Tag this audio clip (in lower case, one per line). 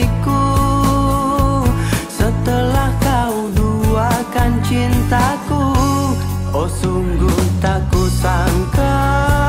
music